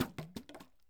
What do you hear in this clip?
object falling on carpet